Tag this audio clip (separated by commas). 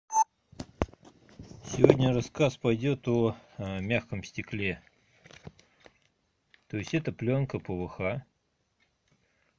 Speech